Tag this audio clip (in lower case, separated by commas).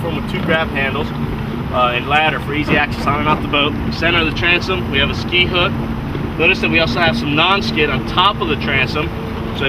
wind, wind noise (microphone)